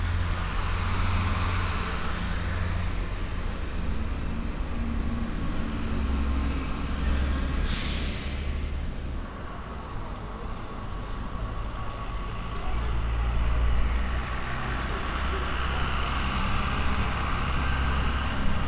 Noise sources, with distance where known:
engine of unclear size

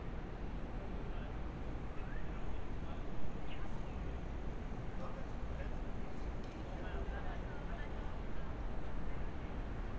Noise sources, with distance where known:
unidentified human voice

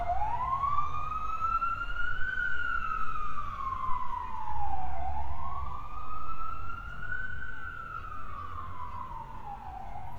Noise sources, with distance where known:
siren, near

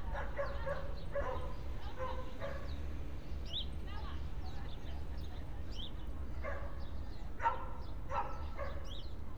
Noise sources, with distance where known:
person or small group talking
dog barking or whining

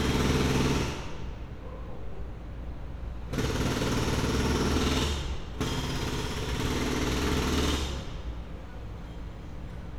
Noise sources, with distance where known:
unidentified impact machinery

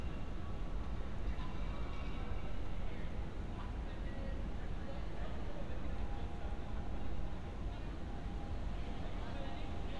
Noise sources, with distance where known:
person or small group talking, far

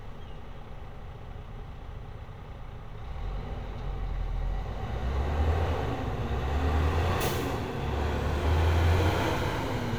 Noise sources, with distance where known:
large-sounding engine, near

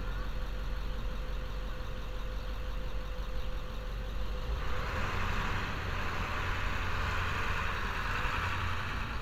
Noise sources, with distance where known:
engine of unclear size

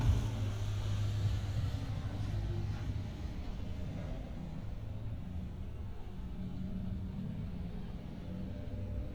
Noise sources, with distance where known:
medium-sounding engine

